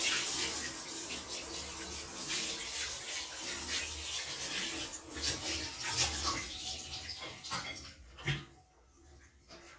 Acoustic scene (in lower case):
restroom